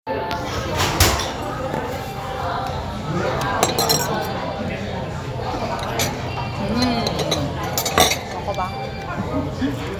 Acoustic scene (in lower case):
restaurant